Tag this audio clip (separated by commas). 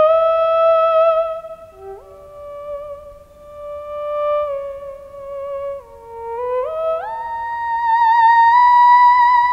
playing theremin